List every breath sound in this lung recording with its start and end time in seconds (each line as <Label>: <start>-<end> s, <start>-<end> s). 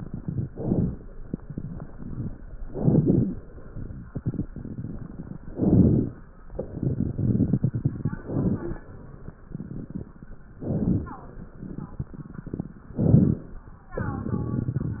Inhalation: 0.47-1.10 s, 2.68-3.30 s, 5.52-6.13 s, 8.22-8.82 s, 10.59-11.20 s, 12.96-13.57 s
Crackles: 0.47-1.10 s, 2.68-3.30 s, 5.52-6.13 s, 8.22-8.82 s, 10.59-11.20 s, 12.96-13.57 s